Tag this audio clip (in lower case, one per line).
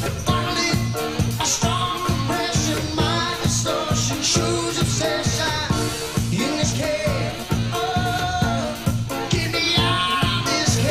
ska
disco
rock and roll